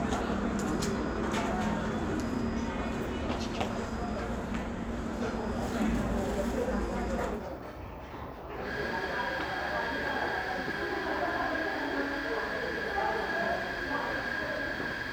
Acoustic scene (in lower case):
crowded indoor space